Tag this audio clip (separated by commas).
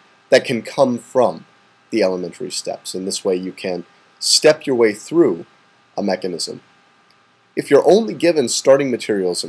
Speech